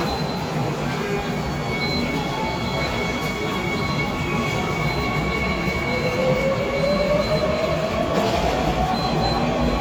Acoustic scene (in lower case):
subway station